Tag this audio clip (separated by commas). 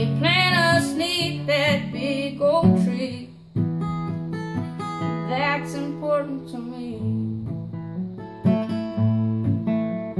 Singing, Guitar, Plucked string instrument, Music, playing acoustic guitar, Acoustic guitar, Musical instrument